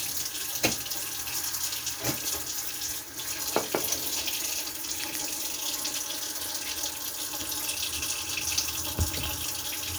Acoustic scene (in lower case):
kitchen